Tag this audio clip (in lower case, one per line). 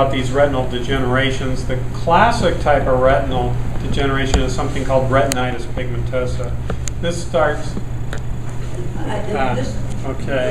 speech
inside a large room or hall